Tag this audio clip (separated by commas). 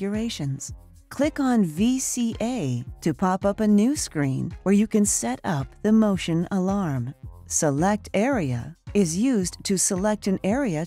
Music, Speech